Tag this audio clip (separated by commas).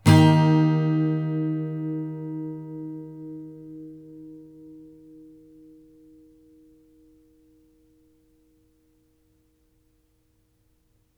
Strum, Plucked string instrument, Musical instrument, Music, Guitar